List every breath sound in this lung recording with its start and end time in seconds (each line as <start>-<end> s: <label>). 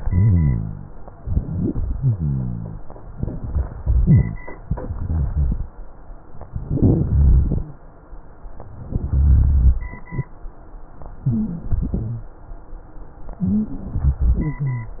0.00-0.89 s: exhalation
0.00-0.89 s: rhonchi
1.18-1.75 s: inhalation
1.18-1.75 s: rhonchi
1.94-2.79 s: exhalation
1.94-2.79 s: rhonchi
3.13-3.99 s: inhalation
3.13-3.99 s: crackles
3.99-4.44 s: exhalation
3.99-4.44 s: rhonchi
6.53-7.05 s: inhalation
7.12-7.70 s: exhalation
7.12-7.70 s: rhonchi
8.88-9.80 s: rhonchi
11.25-11.78 s: inhalation
11.25-11.78 s: wheeze
11.82-12.35 s: exhalation
11.82-12.35 s: rhonchi
13.42-13.85 s: inhalation
13.42-13.85 s: wheeze
13.97-15.00 s: exhalation
13.97-15.00 s: rhonchi